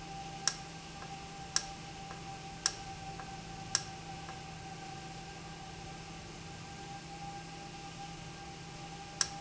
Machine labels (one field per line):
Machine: valve